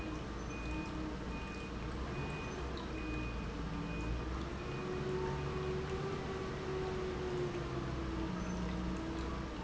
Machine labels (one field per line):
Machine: pump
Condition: normal